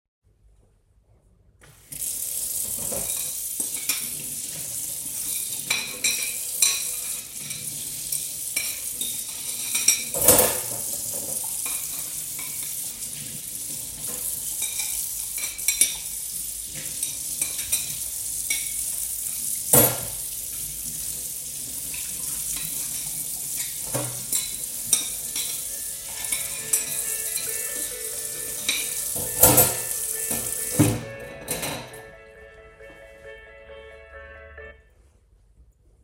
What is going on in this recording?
I was doing the dishes when my phone rang.